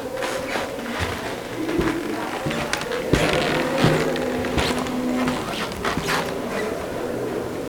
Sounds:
squeak, human group actions, chatter, walk

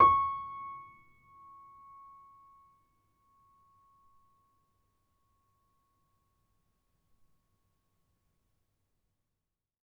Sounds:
music, musical instrument, keyboard (musical), piano

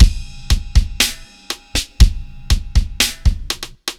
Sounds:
musical instrument, music, drum kit, percussion

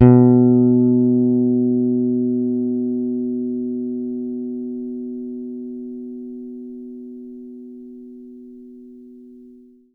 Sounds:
musical instrument, music, plucked string instrument, guitar, bass guitar

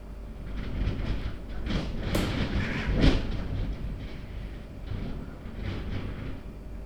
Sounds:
wind

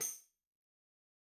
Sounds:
music, tambourine, percussion, musical instrument

